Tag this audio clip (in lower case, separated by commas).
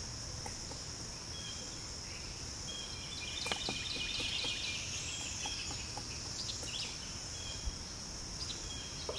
woodpecker pecking tree